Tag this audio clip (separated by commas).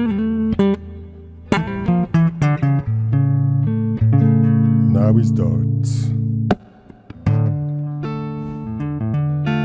Electronic tuner, inside a small room, Speech, Guitar, Plucked string instrument, Musical instrument, Music